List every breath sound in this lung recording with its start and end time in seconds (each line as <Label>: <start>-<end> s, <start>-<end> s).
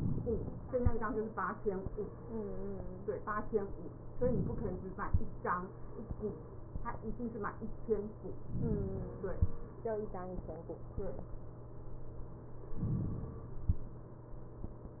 Inhalation: 4.16-5.06 s, 8.46-9.36 s, 12.85-13.82 s